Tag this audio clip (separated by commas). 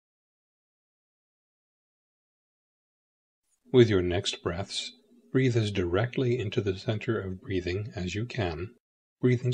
Speech synthesizer, Speech